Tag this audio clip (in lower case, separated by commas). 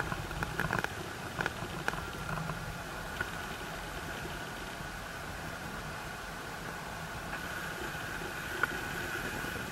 white noise